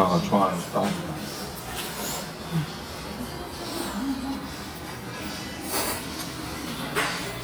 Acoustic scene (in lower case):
restaurant